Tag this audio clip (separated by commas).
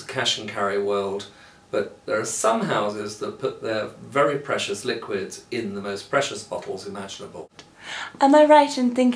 Speech